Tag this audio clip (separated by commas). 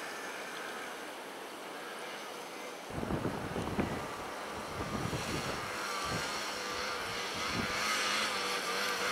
driving snowmobile